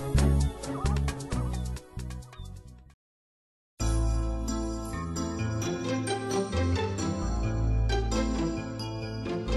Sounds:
music

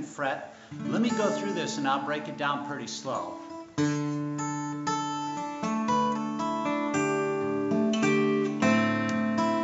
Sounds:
speech, guitar, music, strum, musical instrument, plucked string instrument, acoustic guitar

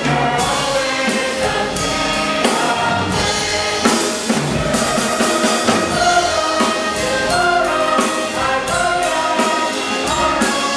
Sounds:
music, orchestra

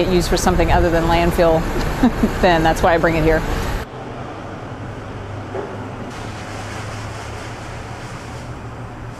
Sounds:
speech

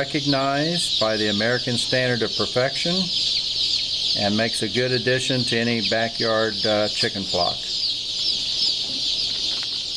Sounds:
speech

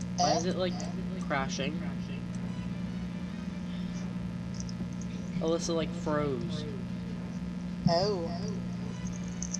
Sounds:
speech, music

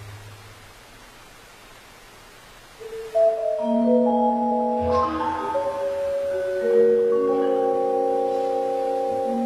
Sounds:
percussion, music

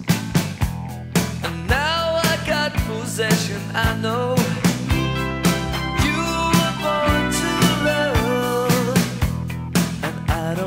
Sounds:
music

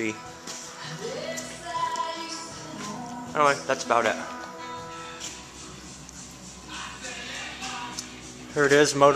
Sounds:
speech, music

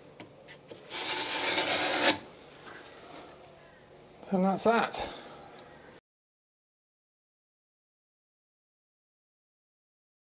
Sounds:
rub, filing (rasp)

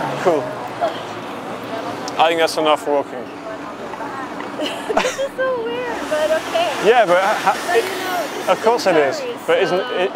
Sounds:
speech

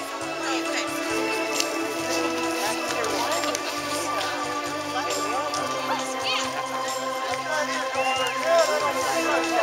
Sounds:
music, horse, clip-clop, animal, speech

